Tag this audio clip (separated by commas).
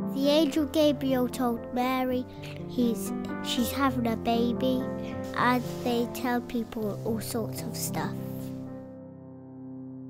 Speech, Theme music, Music